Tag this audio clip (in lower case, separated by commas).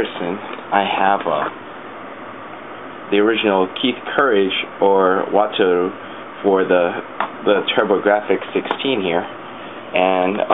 speech